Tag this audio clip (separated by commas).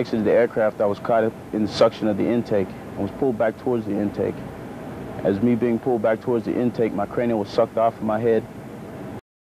Speech